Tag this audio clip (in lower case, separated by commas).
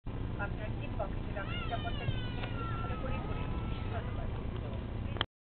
speech